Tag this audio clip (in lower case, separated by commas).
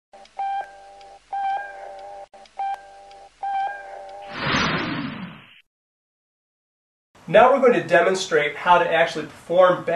speech